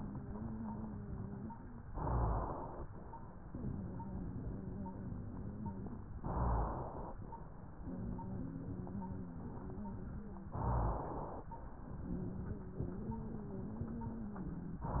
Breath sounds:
1.89-2.87 s: inhalation
6.19-7.17 s: inhalation
10.55-11.54 s: inhalation
14.88-15.00 s: inhalation

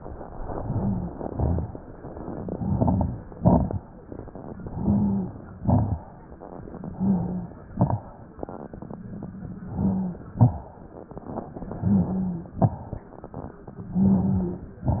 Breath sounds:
0.19-1.12 s: inhalation
0.19-1.12 s: rhonchi
1.27-1.71 s: exhalation
1.27-1.71 s: crackles
2.44-3.19 s: inhalation
2.44-3.19 s: crackles
3.37-3.82 s: exhalation
3.37-3.82 s: crackles
4.67-5.38 s: inhalation
4.67-5.38 s: rhonchi
5.60-6.02 s: exhalation
5.60-6.02 s: crackles
6.86-7.67 s: inhalation
6.86-7.67 s: rhonchi
7.73-8.15 s: exhalation
7.73-8.15 s: crackles
9.66-10.31 s: inhalation
9.66-10.31 s: rhonchi
10.38-10.73 s: exhalation
10.38-10.73 s: crackles
11.75-12.55 s: inhalation
11.75-12.55 s: rhonchi
12.57-12.91 s: exhalation
12.57-12.91 s: crackles
13.91-14.69 s: inhalation
13.91-14.69 s: rhonchi

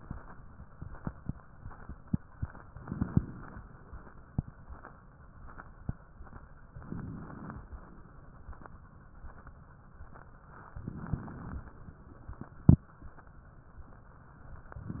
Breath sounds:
2.69-3.68 s: inhalation
6.75-7.68 s: inhalation
10.82-11.80 s: inhalation
14.78-15.00 s: inhalation

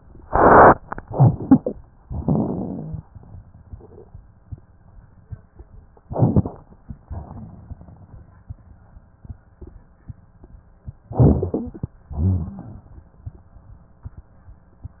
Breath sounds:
2.03-3.06 s: exhalation
2.03-3.06 s: rhonchi
6.09-6.57 s: inhalation
6.09-6.57 s: crackles
7.06-7.84 s: exhalation
7.06-7.84 s: crackles
11.14-11.92 s: inhalation
11.14-11.92 s: crackles
12.14-12.92 s: exhalation
12.14-12.92 s: rhonchi

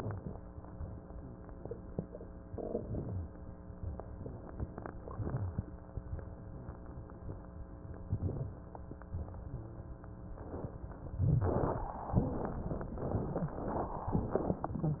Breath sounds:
2.49-3.28 s: inhalation
2.49-3.28 s: crackles
4.16-5.69 s: exhalation
8.10-8.89 s: inhalation
8.10-8.89 s: crackles
9.17-11.18 s: exhalation
9.17-11.18 s: crackles
11.18-12.04 s: inhalation
11.18-12.04 s: crackles
11.21-12.06 s: crackles
12.15-14.05 s: exhalation

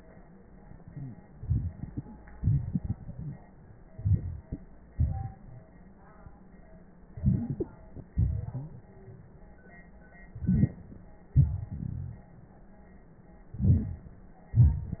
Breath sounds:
1.37-2.18 s: inhalation
1.37-2.18 s: crackles
2.35-3.42 s: exhalation
2.35-3.42 s: crackles
3.93-4.61 s: inhalation
4.99-5.67 s: exhalation
7.13-8.05 s: inhalation
8.14-8.88 s: exhalation
10.34-10.95 s: inhalation
10.34-10.95 s: crackles
11.33-12.22 s: exhalation
13.55-14.21 s: inhalation

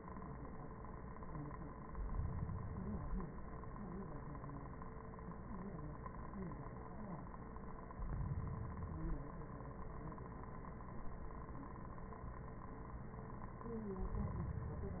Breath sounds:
1.77-3.47 s: inhalation
7.93-9.38 s: inhalation
13.96-15.00 s: inhalation

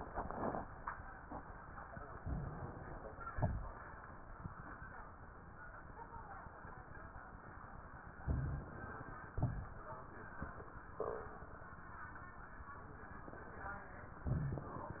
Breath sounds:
2.18-3.27 s: inhalation
3.32-3.80 s: exhalation
3.32-3.80 s: crackles
8.25-9.34 s: inhalation
9.35-9.93 s: exhalation
9.35-9.93 s: crackles

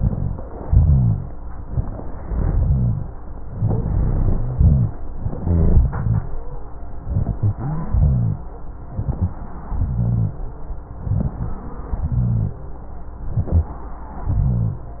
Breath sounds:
0.00-0.40 s: inhalation
0.00-0.40 s: rhonchi
0.63-1.35 s: exhalation
0.63-1.35 s: rhonchi
1.69-2.22 s: inhalation
1.69-2.22 s: rhonchi
2.26-3.11 s: exhalation
2.26-3.11 s: rhonchi
3.55-4.50 s: inhalation
3.55-4.50 s: rhonchi
4.51-4.99 s: exhalation
4.51-4.99 s: rhonchi
5.22-5.86 s: inhalation
5.22-5.86 s: rhonchi
5.94-6.26 s: exhalation
5.94-6.26 s: rhonchi
7.02-7.57 s: inhalation
7.02-7.57 s: rhonchi
7.59-8.41 s: exhalation
7.59-8.41 s: rhonchi
8.82-9.43 s: inhalation
8.82-9.43 s: rhonchi
9.66-10.38 s: exhalation
9.66-10.38 s: rhonchi
10.97-11.69 s: inhalation
10.97-11.69 s: rhonchi
11.90-12.62 s: exhalation
11.90-12.62 s: rhonchi
13.26-13.72 s: inhalation
13.26-13.72 s: rhonchi
14.21-14.91 s: exhalation
14.21-14.91 s: rhonchi

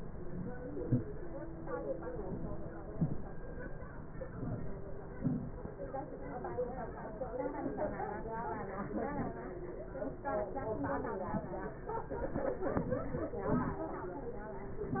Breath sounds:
0.00-0.56 s: inhalation
0.60-0.98 s: exhalation
2.24-2.80 s: inhalation
2.90-3.25 s: exhalation
4.30-4.95 s: inhalation
5.14-5.51 s: exhalation

